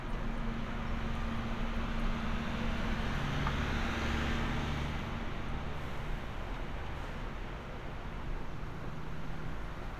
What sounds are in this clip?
large-sounding engine